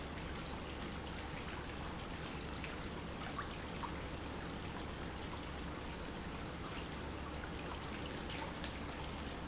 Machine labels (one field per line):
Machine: pump